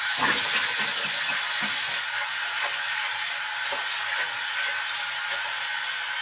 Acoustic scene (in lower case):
restroom